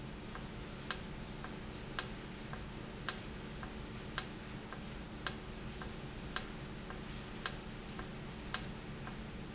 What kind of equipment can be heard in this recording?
valve